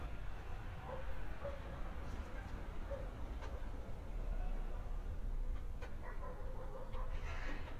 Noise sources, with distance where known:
dog barking or whining, far

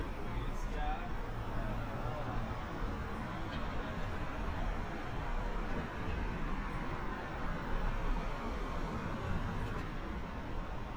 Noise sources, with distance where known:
engine of unclear size, far

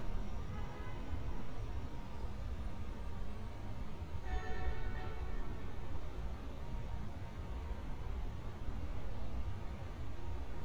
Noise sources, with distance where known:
car horn, far

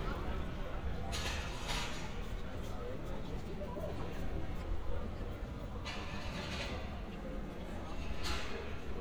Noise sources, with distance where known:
non-machinery impact, far

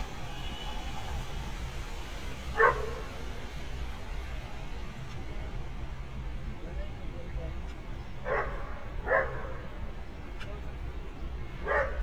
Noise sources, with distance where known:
person or small group talking, near
dog barking or whining, near

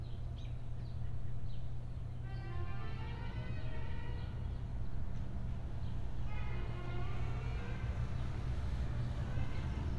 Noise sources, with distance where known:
music from a fixed source, far

